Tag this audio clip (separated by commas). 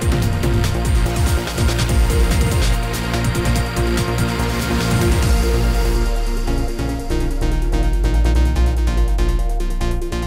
Music